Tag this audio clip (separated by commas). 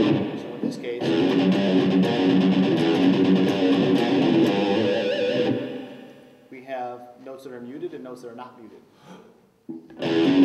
Speech, Strum, Music, Plucked string instrument, Musical instrument, Electric guitar, Guitar, Bass guitar